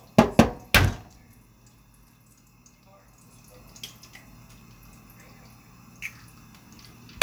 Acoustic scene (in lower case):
kitchen